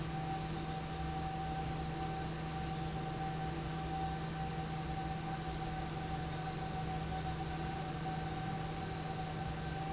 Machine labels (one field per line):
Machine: fan